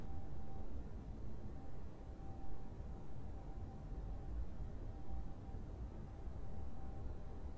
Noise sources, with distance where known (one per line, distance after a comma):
background noise